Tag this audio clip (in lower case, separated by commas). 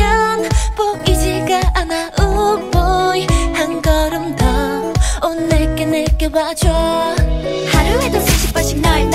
music